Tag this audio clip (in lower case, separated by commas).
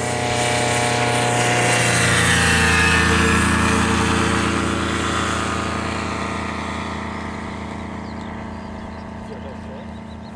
speech, engine, vehicle, aircraft